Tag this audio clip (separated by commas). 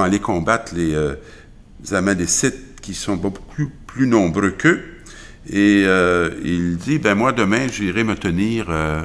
Speech